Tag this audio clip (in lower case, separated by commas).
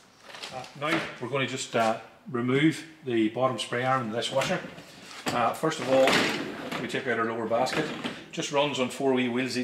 speech